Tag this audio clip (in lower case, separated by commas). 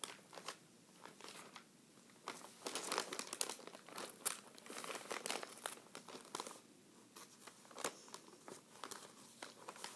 ripping paper